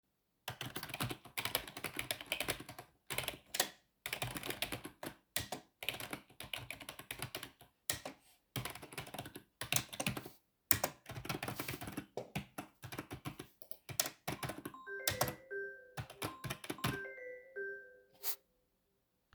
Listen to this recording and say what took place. I was working on my system while doing the same the phonebell rang